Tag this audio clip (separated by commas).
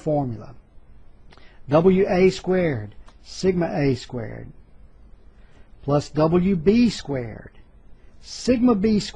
Speech